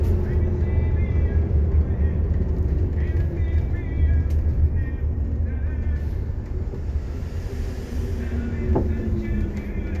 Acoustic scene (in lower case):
bus